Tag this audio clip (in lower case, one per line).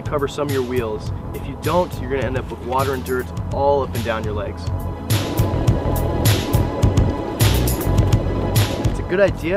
music
speech